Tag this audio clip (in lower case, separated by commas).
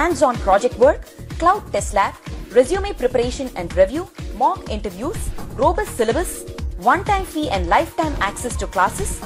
speech, music